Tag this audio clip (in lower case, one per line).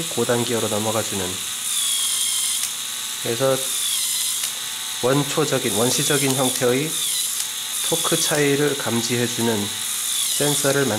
speech